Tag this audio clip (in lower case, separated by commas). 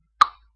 tick